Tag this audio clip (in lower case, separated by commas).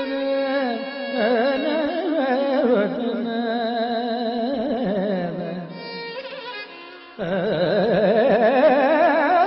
folk music, music